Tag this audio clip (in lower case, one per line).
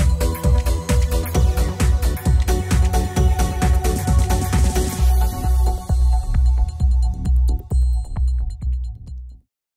music